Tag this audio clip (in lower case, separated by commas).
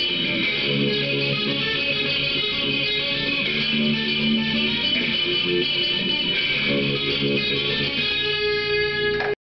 music, guitar, plucked string instrument, musical instrument, bass guitar